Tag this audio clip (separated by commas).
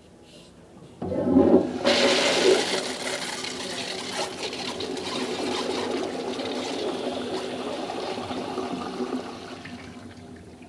Water, Toilet flush